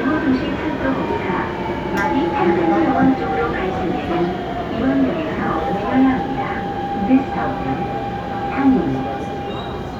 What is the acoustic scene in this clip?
subway train